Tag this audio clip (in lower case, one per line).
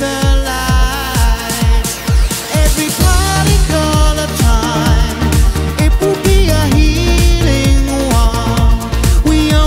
music